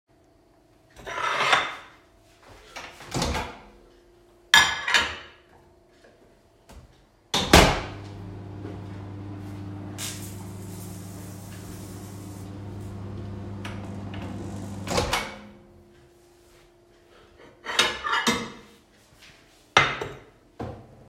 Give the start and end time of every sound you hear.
[0.94, 2.02] cutlery and dishes
[2.69, 3.69] microwave
[4.47, 5.51] cutlery and dishes
[7.25, 15.58] microwave
[17.63, 20.85] cutlery and dishes

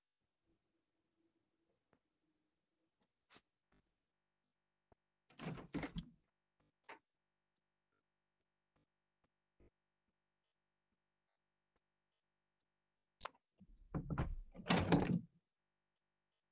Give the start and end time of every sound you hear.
[5.18, 7.11] window
[13.14, 15.40] window

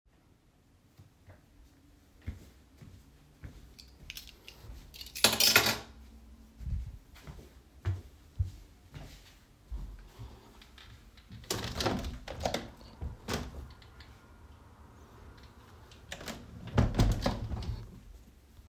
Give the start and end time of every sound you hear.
[0.98, 1.20] footsteps
[2.18, 4.90] footsteps
[4.04, 5.89] keys
[6.57, 11.26] footsteps
[11.45, 13.97] window
[16.09, 18.00] window

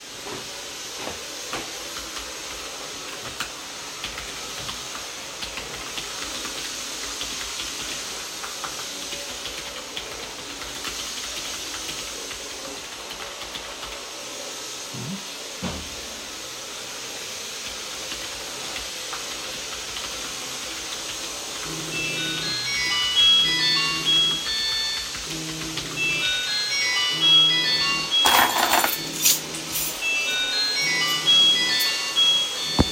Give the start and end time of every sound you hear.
[0.00, 32.92] vacuum cleaner
[1.40, 13.99] keyboard typing
[18.01, 28.13] keyboard typing
[21.81, 32.92] phone ringing
[28.11, 30.03] keys
[30.73, 32.60] keys

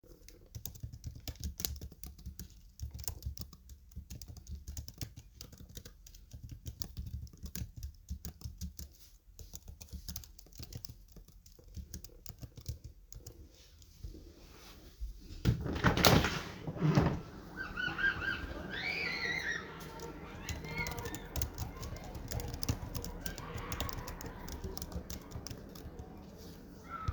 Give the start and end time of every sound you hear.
[0.00, 13.68] keyboard typing
[15.40, 17.22] window
[20.41, 26.14] keyboard typing

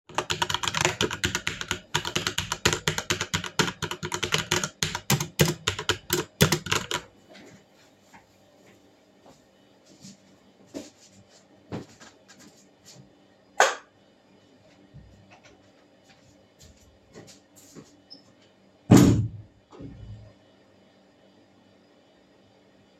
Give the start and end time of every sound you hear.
[0.00, 7.17] keyboard typing
[9.29, 13.11] footsteps
[13.56, 13.92] light switch
[16.00, 18.59] footsteps
[18.89, 20.39] door

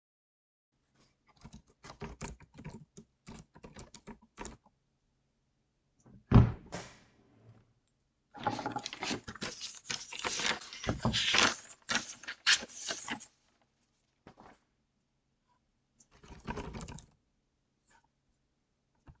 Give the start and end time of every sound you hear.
[1.33, 4.78] keyboard typing
[6.25, 6.94] wardrobe or drawer
[16.00, 17.13] keyboard typing

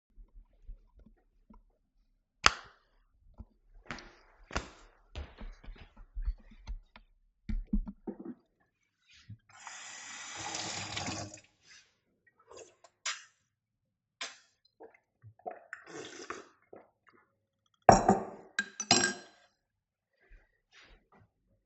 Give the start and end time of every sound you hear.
[1.98, 2.79] light switch
[3.31, 7.10] footsteps
[7.36, 8.81] cutlery and dishes
[9.15, 12.14] running water
[12.20, 14.78] cutlery and dishes
[17.30, 19.82] cutlery and dishes

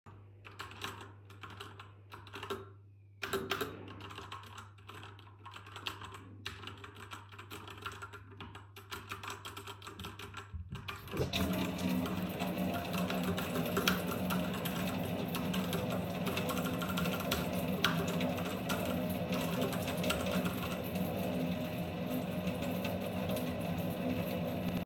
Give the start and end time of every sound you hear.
[0.43, 21.11] keyboard typing
[11.10, 24.85] running water

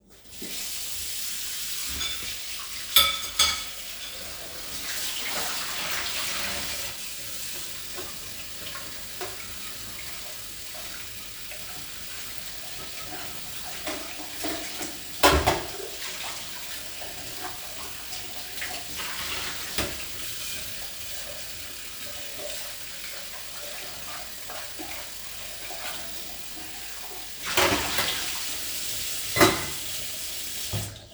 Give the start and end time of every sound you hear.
[0.15, 31.11] running water
[1.96, 4.43] cutlery and dishes
[13.88, 16.05] cutlery and dishes
[19.73, 20.00] cutlery and dishes
[27.58, 28.32] cutlery and dishes
[29.31, 29.86] cutlery and dishes

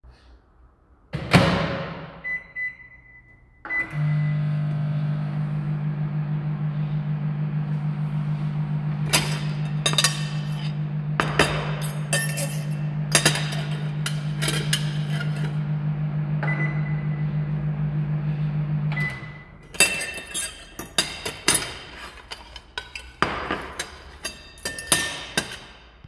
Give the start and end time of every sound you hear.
[1.11, 19.40] microwave
[9.07, 15.65] cutlery and dishes
[19.65, 20.48] cutlery and dishes
[20.91, 25.75] cutlery and dishes

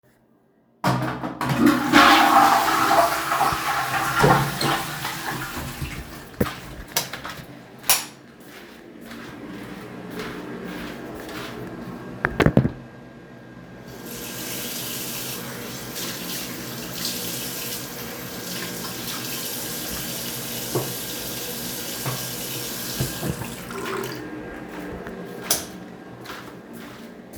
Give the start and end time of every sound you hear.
[0.77, 6.80] toilet flushing
[7.73, 8.18] light switch
[8.26, 12.21] footsteps
[13.94, 25.23] running water
[25.39, 25.66] light switch
[25.73, 27.37] footsteps

